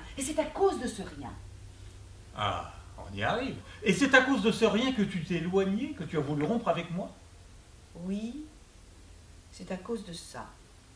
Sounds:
Speech

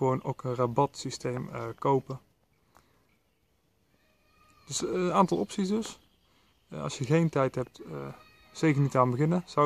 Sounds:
Speech

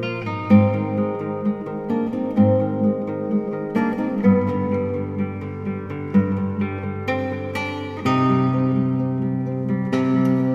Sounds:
Music, Musical instrument, Guitar, Acoustic guitar

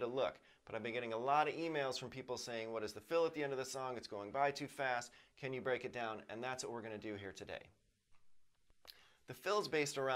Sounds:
Speech

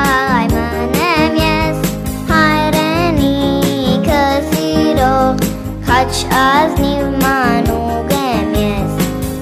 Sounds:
Music, Music for children, Singing, Happy music

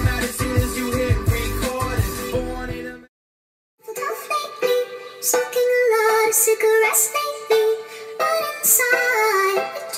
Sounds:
Music

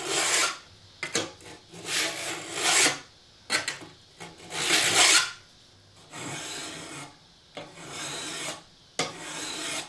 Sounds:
Filing (rasp), Tools, Rub

